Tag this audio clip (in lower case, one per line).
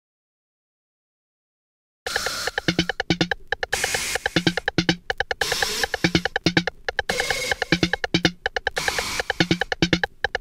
drum machine
music